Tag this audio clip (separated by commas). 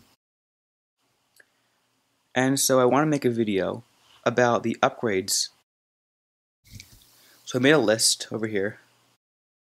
Speech